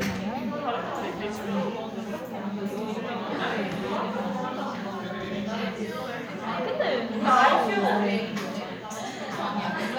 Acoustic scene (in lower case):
crowded indoor space